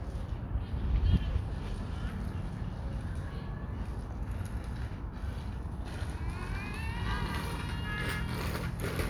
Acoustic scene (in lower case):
park